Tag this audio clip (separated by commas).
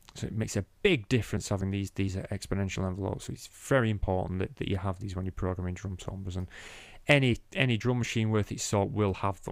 Speech